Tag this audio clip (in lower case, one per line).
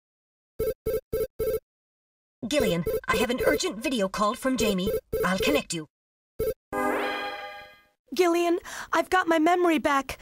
speech